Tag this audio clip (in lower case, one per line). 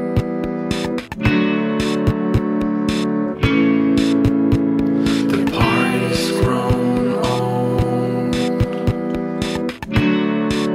music